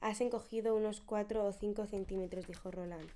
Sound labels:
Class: speech